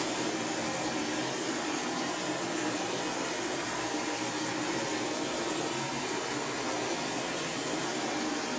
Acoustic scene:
kitchen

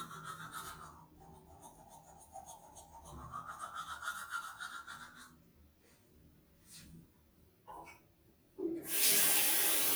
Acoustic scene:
restroom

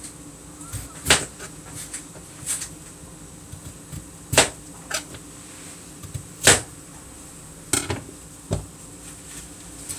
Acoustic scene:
kitchen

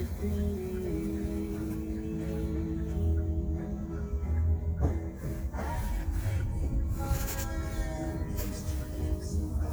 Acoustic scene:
car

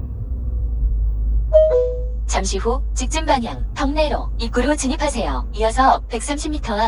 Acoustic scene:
car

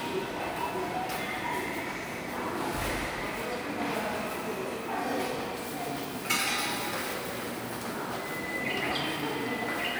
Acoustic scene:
subway station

